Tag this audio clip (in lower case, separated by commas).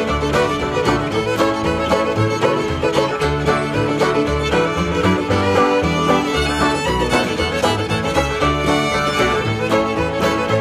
music